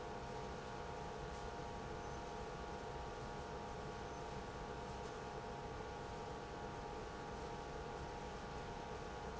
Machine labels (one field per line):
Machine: pump